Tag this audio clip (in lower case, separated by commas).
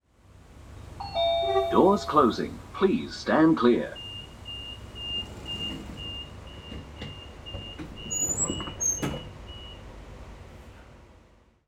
home sounds, sliding door, door